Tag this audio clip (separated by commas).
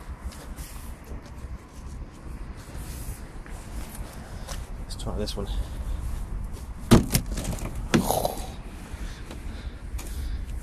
Car, Vehicle, Speech